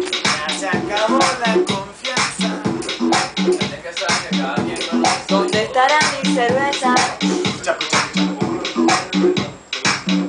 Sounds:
Speech, Music

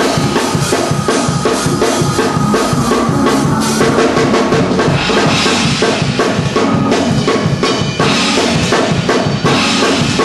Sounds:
Music

